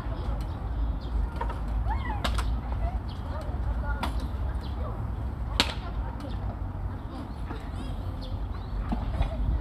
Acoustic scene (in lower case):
park